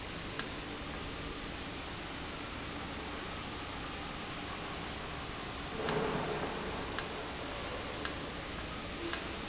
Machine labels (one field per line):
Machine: valve